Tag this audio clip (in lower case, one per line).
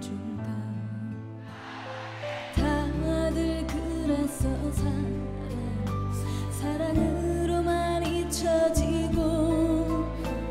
music